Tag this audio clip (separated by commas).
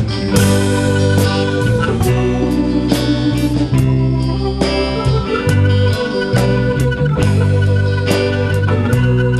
Country, Blues, Music